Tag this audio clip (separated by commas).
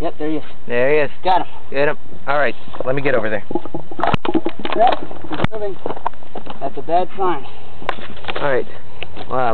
Speech